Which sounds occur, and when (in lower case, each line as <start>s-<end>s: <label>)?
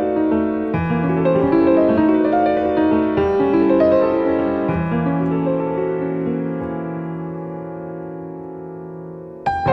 0.0s-9.7s: music
5.2s-5.3s: tick